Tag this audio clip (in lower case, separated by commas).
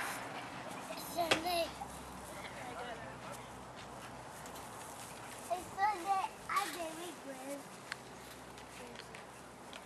speech